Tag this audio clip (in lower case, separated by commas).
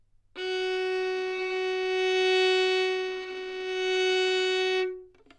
bowed string instrument, musical instrument, music